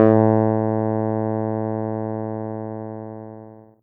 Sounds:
Keyboard (musical), Music, Musical instrument

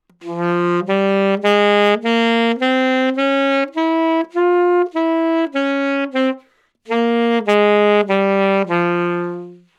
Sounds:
Musical instrument, Music, woodwind instrument

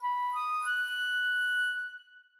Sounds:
Wind instrument, Musical instrument, Music

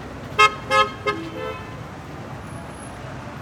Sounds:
Motor vehicle (road), Vehicle

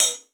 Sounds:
Musical instrument, Hi-hat, Cymbal, Percussion, Music

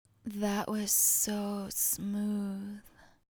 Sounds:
Human voice

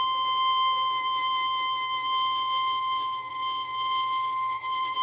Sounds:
Music, Bowed string instrument, Musical instrument

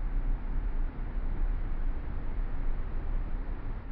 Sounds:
Motor vehicle (road), Car, Vehicle

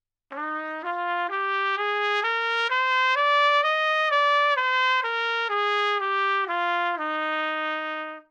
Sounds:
Brass instrument, Musical instrument, Trumpet, Music

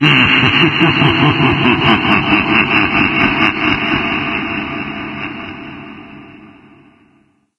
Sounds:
Human voice, Laughter

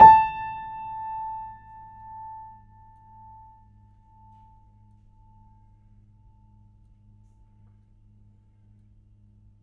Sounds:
Music, Musical instrument, Keyboard (musical), Piano

